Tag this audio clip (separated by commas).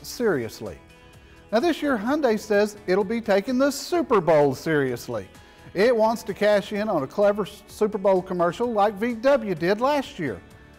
Music, Speech